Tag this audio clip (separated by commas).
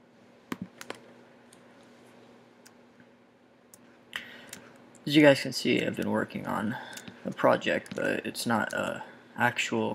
Speech